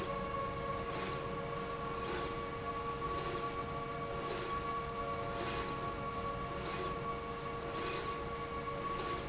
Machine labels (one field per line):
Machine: slide rail